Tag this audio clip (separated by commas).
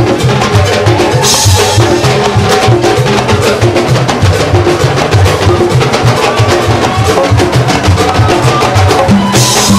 playing timbales